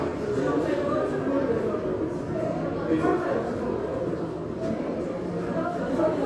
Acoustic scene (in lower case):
subway station